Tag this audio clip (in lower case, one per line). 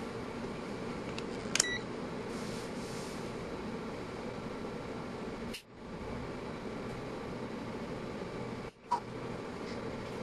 beep
inside a small room